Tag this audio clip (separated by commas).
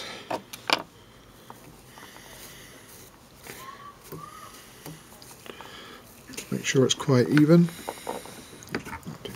Speech